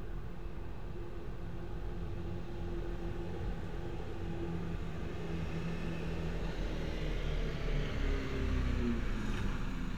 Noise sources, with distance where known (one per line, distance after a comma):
large-sounding engine